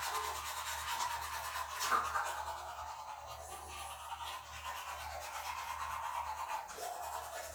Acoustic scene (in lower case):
restroom